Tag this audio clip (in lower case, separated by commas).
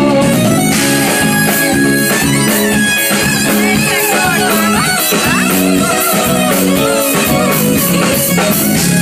music, speech